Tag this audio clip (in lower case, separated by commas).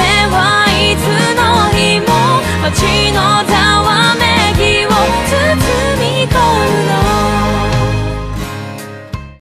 music